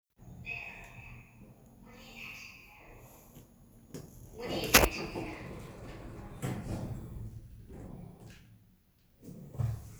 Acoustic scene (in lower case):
elevator